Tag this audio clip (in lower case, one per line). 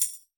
musical instrument
tambourine
percussion
music